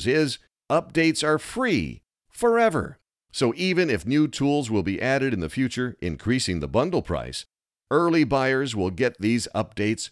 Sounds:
speech

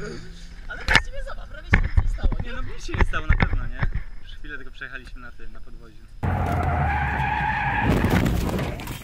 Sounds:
car
skidding
vehicle

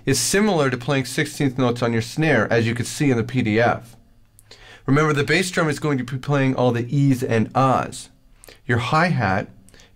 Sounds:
speech

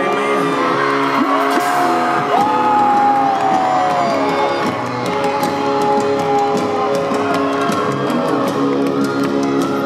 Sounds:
speech
music

